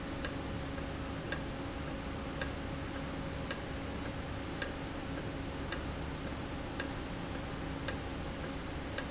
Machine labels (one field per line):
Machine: valve